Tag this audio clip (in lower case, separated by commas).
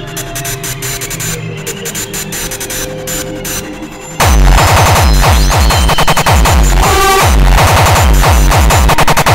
music